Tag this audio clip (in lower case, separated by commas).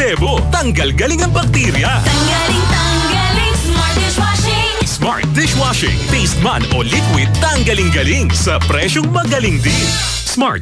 music, speech